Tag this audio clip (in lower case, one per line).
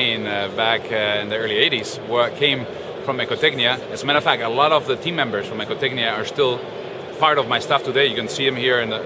speech